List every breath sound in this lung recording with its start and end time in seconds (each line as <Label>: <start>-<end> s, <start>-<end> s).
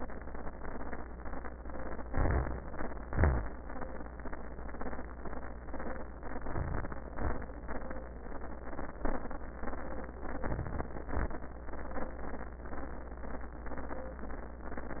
Inhalation: 2.09-2.52 s, 6.50-6.92 s, 10.41-10.88 s
Exhalation: 3.09-3.52 s, 7.19-7.49 s, 11.10-11.39 s
Wheeze: 3.09-3.52 s
Crackles: 6.50-6.92 s